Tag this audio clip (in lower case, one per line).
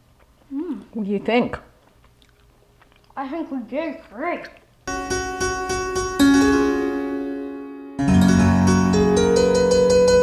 harpsichord
speech
music